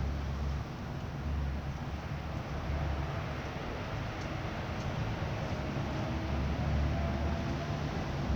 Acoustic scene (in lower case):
residential area